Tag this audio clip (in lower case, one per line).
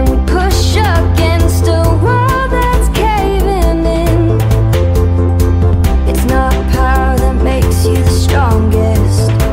music